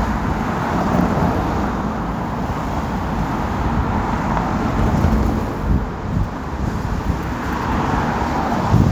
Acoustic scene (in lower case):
street